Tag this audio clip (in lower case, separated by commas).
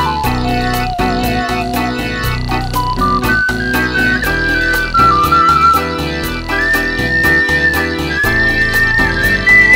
music, musical instrument